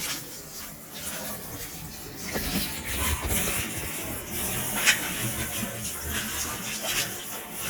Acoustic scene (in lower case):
kitchen